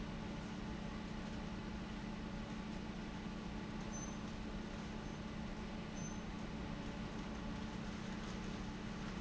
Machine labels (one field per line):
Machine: fan